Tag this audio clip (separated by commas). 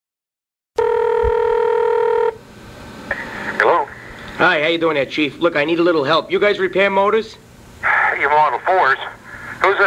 Telephone bell ringing, Speech